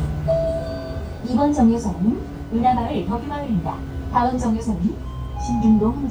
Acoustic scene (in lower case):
bus